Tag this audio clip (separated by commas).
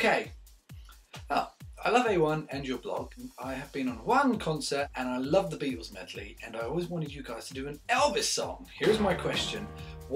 Speech, Music